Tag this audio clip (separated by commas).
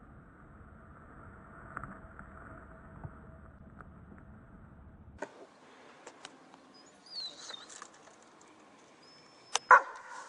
Bird